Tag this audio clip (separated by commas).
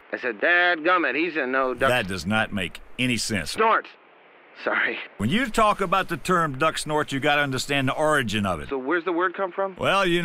Speech